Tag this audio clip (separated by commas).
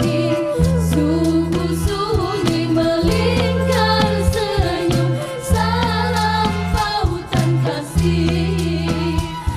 Music